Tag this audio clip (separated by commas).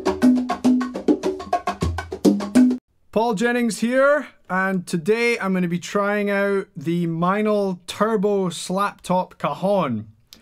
inside a small room, Musical instrument, Speech, Percussion, Music